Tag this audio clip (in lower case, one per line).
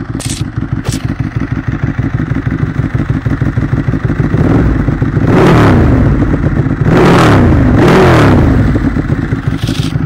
outside, urban or man-made